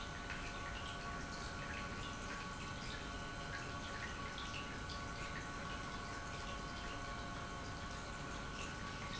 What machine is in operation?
pump